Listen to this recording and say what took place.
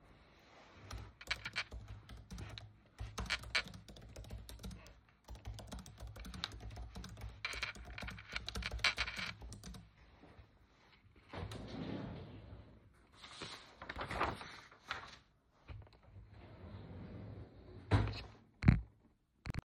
I was typing on my laptop and then opened a drawer to get a paper and shut it afterwards